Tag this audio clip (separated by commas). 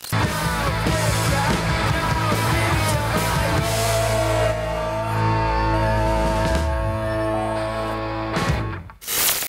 Music